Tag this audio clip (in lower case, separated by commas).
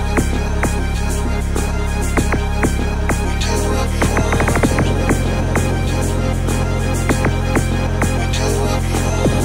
electronic music, music